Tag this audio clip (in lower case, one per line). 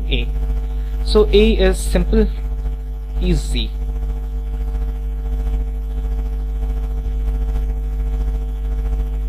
speech